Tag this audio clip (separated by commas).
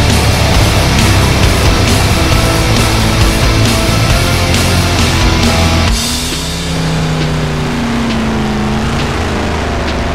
Motor vehicle (road), Music, Car, Vehicle